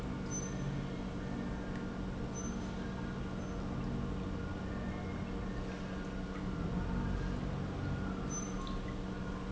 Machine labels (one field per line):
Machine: pump